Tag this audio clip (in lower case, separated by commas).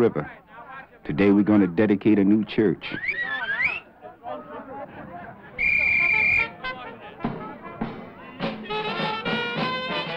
speech, music